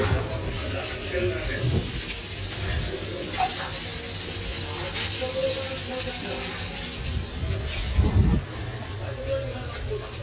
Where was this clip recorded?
in a restaurant